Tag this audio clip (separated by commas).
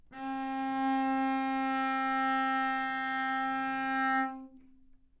Musical instrument, Music, Bowed string instrument